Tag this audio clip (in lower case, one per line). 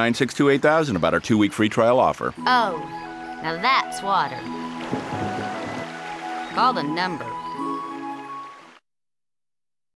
music
stream
speech